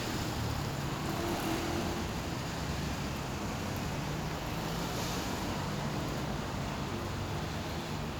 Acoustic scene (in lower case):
street